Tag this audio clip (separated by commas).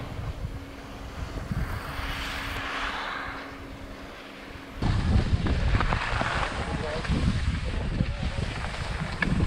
skiing